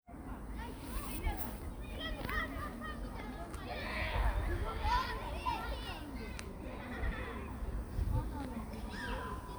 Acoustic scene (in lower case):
park